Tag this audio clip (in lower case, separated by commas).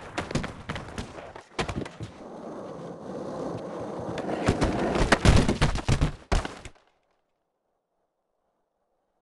skateboard